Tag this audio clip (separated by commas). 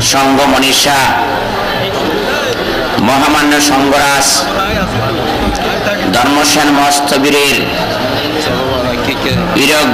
Speech, Male speech, monologue